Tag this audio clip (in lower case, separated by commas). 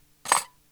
domestic sounds, cutlery